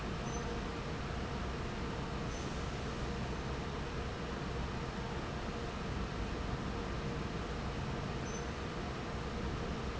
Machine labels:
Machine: fan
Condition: normal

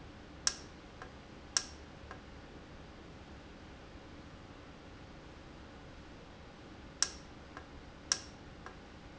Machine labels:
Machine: valve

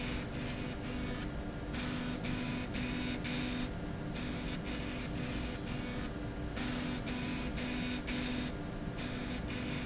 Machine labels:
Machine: slide rail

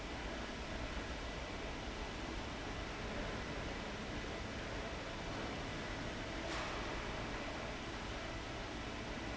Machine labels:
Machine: fan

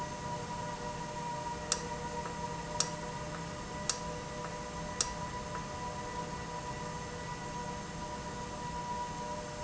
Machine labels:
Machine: valve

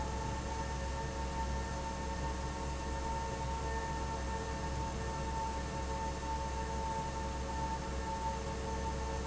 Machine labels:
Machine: fan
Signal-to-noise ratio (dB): -6 dB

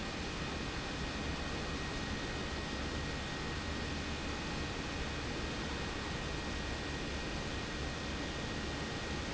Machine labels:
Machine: pump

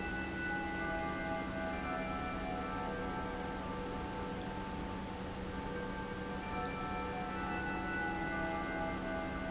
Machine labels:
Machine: pump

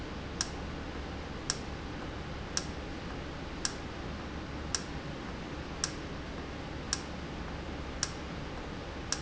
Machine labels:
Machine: valve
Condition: normal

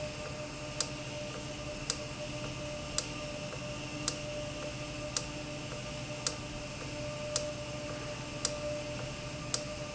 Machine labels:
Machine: valve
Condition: normal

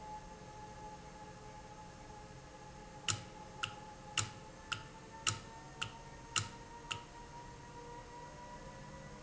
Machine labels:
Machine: valve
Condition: normal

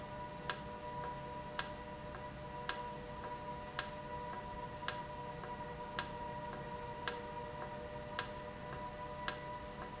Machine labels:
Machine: valve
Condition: normal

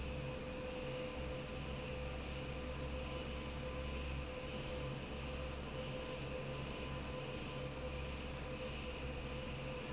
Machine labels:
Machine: fan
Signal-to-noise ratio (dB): 0 dB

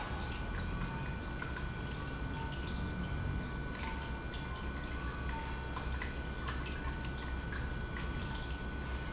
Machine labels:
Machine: pump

